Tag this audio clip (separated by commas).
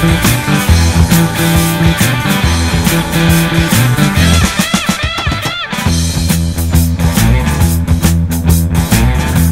Music